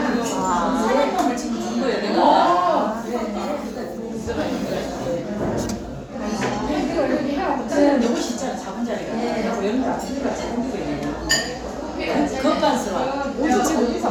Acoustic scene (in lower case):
crowded indoor space